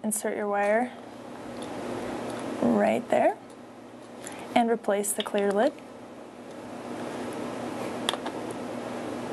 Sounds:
Speech

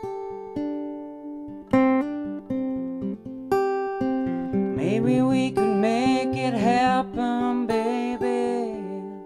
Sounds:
Music

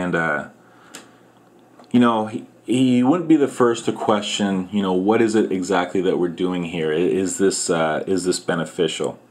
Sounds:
Speech

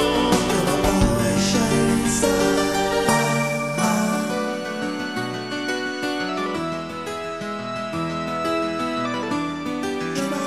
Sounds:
Harpsichord, Music

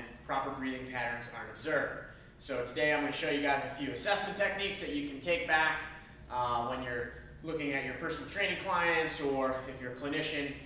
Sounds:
Speech

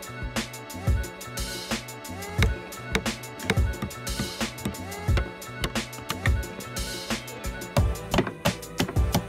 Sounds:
hammering nails

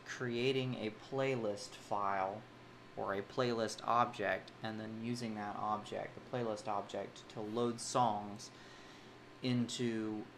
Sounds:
Speech

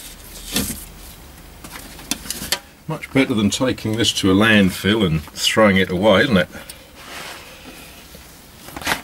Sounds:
Tools, Speech

